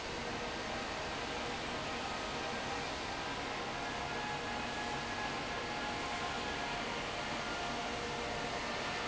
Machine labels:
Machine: fan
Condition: abnormal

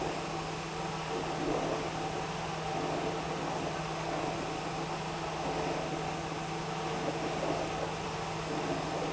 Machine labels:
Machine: pump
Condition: abnormal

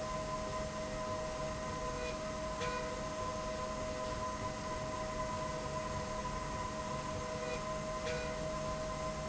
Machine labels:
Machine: slide rail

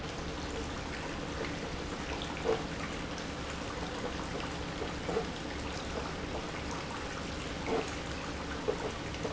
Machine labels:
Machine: pump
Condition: abnormal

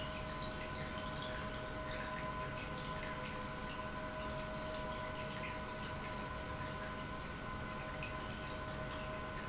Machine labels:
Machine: pump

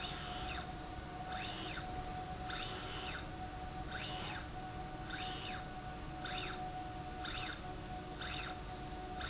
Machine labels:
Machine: slide rail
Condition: normal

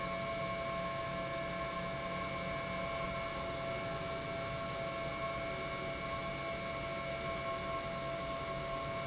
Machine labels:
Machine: pump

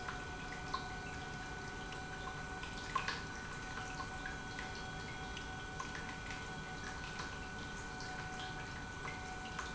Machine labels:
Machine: pump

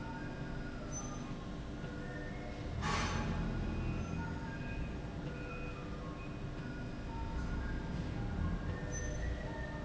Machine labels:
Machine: slide rail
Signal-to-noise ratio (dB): -6 dB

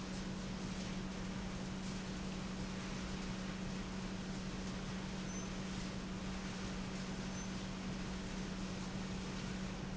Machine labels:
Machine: pump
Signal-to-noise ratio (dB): 0 dB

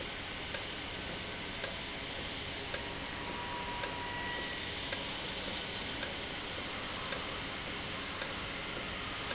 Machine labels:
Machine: valve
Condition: normal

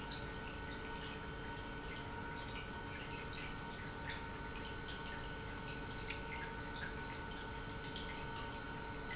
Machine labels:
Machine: pump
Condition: normal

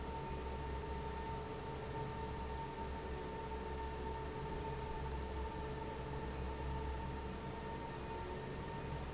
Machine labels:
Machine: fan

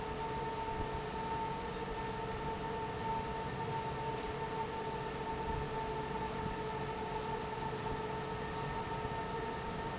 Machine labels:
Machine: fan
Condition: normal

